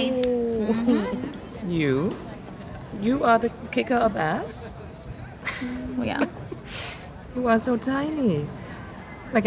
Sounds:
speech

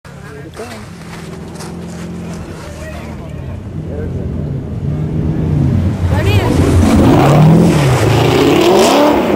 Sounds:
car
speech
vehicle

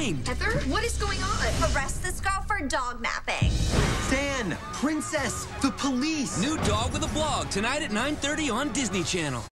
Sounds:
speech
music

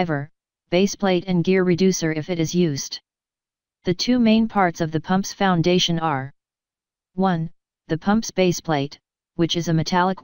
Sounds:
speech

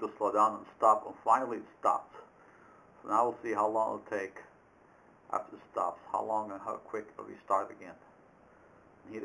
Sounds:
speech

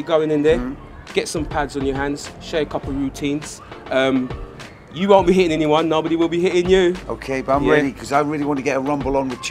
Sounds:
speech
music

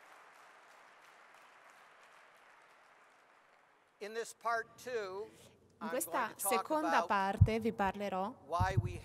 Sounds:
speech

